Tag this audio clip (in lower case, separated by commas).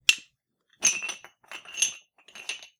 home sounds, dishes, pots and pans